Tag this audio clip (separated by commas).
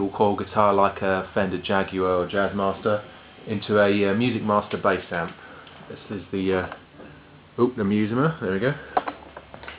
Speech